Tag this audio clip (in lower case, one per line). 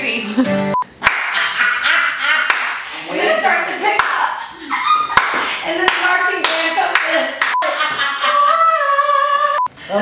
speech